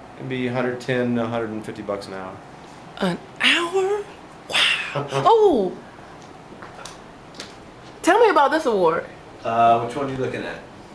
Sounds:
Speech, inside a small room

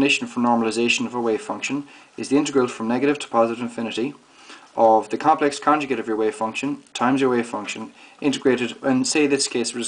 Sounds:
Speech

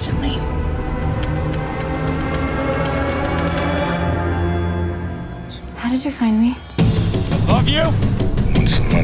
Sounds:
Speech, Music

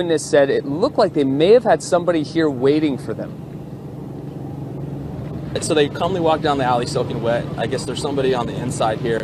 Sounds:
Speech

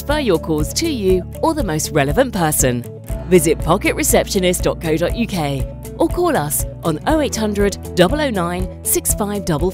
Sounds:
Music, Speech

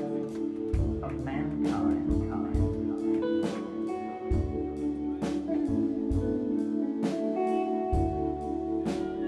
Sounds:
Musical instrument, Guitar, Speech, Music

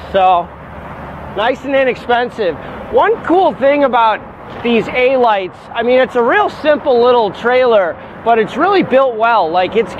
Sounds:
Speech

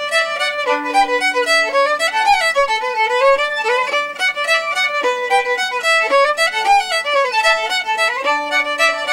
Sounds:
Music, fiddle, Musical instrument

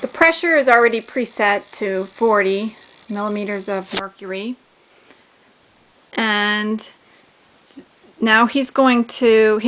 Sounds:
Speech

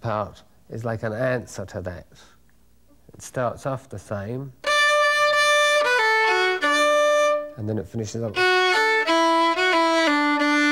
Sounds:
Music, Speech, fiddle, Musical instrument

